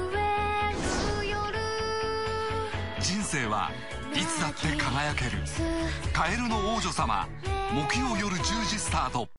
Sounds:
speech, music

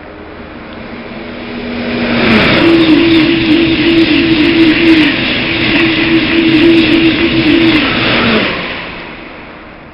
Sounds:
train, rail transport, vehicle

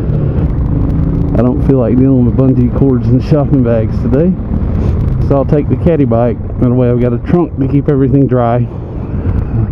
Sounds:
car passing by, speech

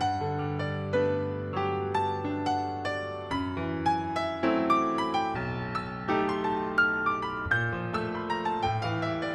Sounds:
piano, music, keyboard (musical), musical instrument

